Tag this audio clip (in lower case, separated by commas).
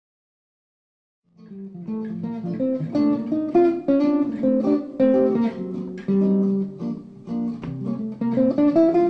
plucked string instrument, music, musical instrument, acoustic guitar